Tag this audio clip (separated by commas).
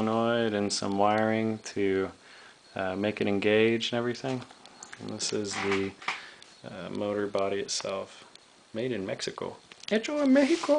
Speech